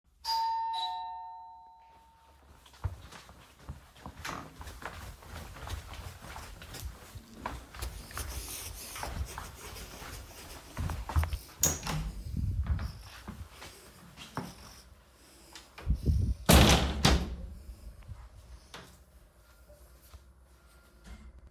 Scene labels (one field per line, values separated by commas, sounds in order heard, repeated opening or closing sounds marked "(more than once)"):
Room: stairwell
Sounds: bell ringing, footsteps, door (more than once)